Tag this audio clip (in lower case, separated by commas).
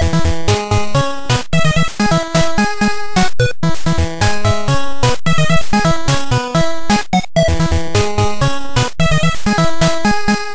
music